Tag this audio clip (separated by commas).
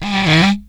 Wood